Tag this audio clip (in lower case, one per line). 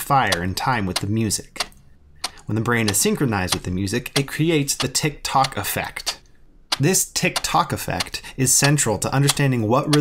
speech
tick